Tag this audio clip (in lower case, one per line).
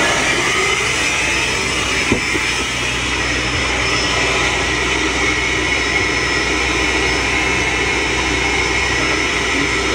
aircraft engine